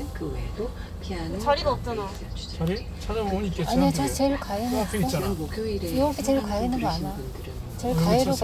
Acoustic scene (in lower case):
car